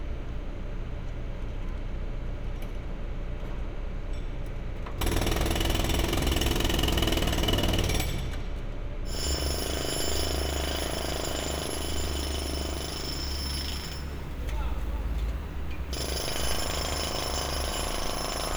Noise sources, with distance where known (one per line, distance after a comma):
jackhammer